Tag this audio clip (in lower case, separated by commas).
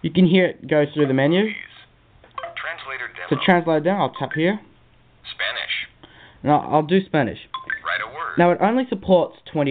speech